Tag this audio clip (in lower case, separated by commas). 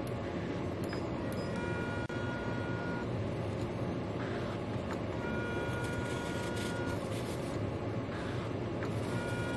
printer printing, printer